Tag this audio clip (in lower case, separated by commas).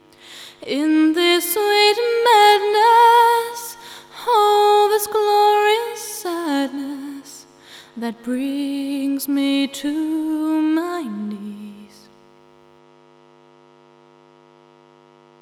female singing, human voice, singing